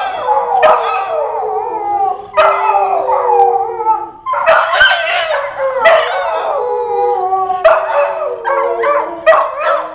Multiple dogs bark and howl